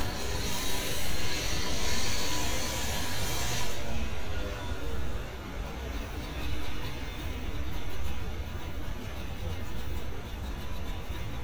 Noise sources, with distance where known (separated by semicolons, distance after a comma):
unidentified impact machinery